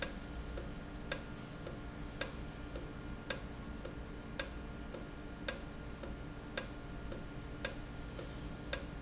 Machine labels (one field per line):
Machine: valve